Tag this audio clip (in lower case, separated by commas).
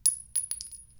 glass, chink